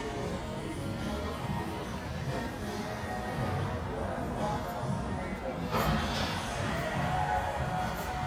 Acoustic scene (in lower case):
restaurant